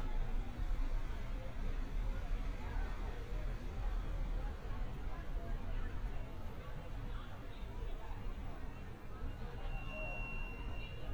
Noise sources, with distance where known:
engine of unclear size, far

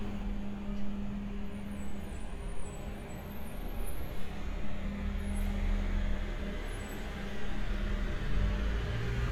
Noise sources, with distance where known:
large-sounding engine

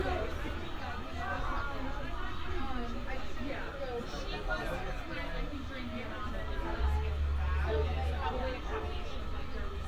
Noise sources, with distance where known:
person or small group talking, near; dog barking or whining

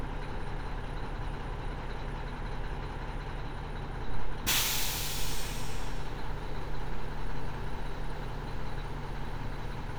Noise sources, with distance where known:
large-sounding engine, near

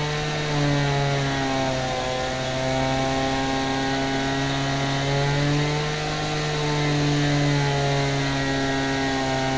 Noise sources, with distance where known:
unidentified powered saw, near

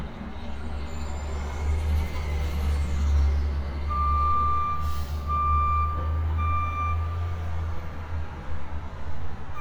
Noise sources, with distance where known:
reverse beeper, near

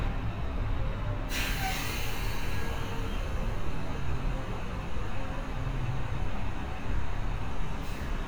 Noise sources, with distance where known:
large-sounding engine, near

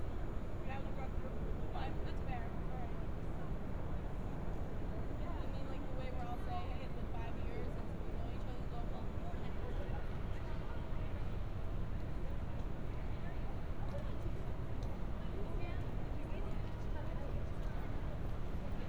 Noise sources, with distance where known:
person or small group talking

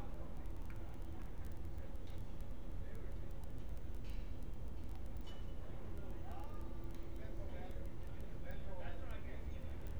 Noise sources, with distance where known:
person or small group talking, far

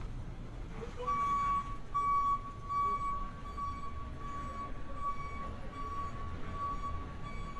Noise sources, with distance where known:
reverse beeper

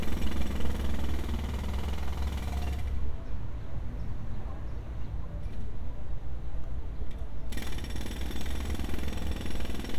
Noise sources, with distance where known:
jackhammer, near

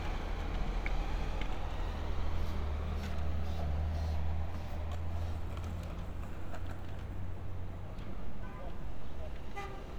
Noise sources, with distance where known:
car horn, far

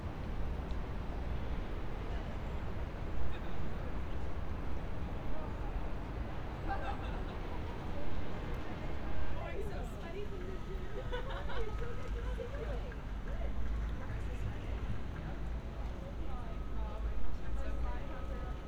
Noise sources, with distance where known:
unidentified human voice

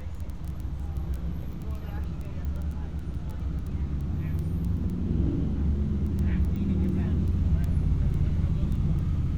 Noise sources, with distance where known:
person or small group talking

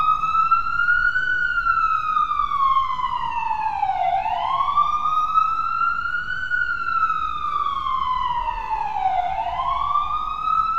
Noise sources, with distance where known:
siren, near

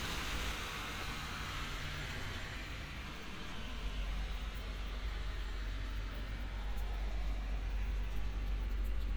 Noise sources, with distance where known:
medium-sounding engine, far

